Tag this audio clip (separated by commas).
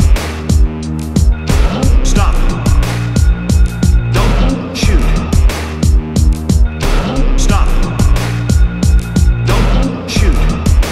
Music